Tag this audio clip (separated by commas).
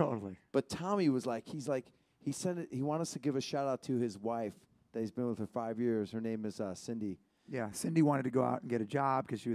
Speech